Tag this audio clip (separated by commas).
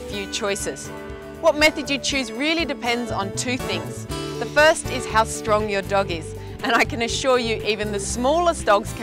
Speech, Music